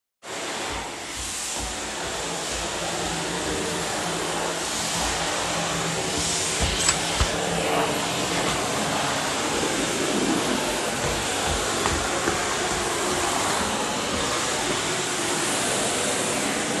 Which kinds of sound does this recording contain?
vacuum cleaner, footsteps, door